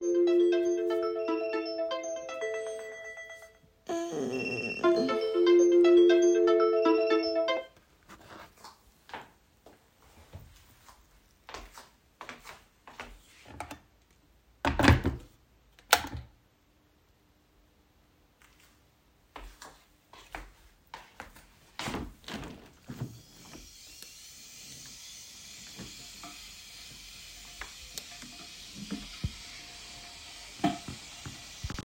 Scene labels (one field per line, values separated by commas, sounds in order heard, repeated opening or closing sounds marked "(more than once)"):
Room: bedroom, kitchen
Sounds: phone ringing, footsteps, window